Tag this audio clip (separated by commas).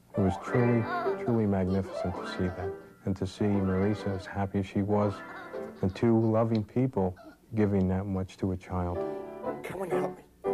Music, Speech